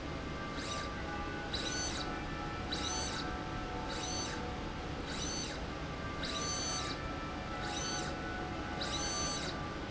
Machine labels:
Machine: slide rail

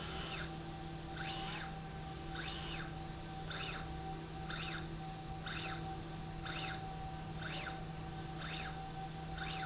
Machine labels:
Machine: slide rail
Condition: normal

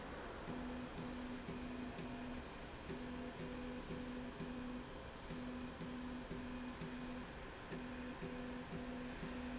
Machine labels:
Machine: slide rail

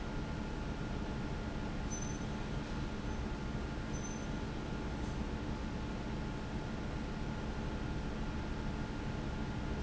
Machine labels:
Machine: fan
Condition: abnormal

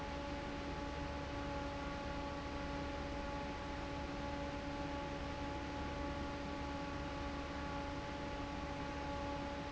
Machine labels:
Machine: fan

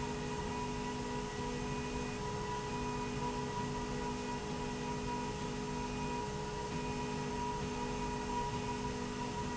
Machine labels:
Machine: slide rail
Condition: normal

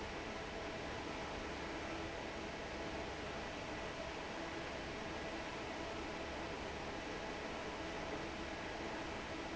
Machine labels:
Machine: fan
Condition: normal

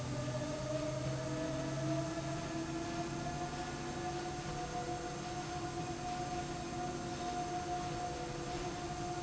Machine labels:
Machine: slide rail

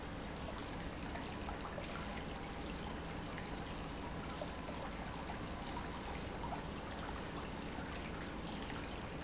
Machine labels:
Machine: pump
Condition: normal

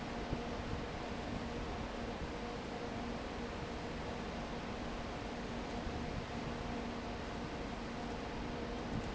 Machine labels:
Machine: fan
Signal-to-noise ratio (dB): 0 dB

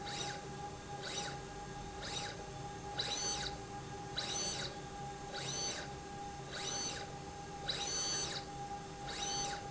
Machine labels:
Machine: slide rail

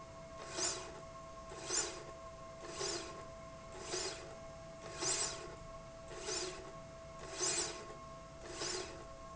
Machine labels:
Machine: slide rail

